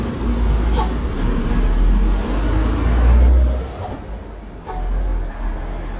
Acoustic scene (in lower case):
street